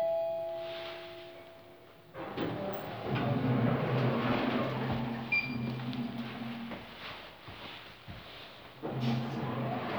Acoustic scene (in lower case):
elevator